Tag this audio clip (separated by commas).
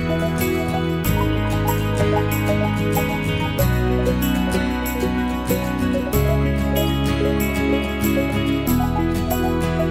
Music